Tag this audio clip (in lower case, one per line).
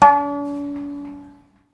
musical instrument
music
bowed string instrument